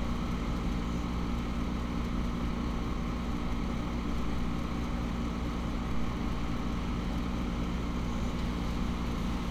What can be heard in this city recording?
large-sounding engine